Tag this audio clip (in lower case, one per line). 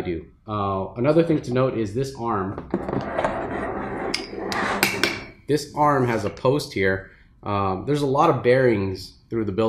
speech